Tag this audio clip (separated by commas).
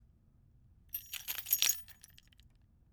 Domestic sounds, Keys jangling